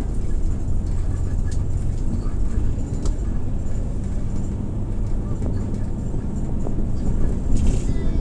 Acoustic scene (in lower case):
bus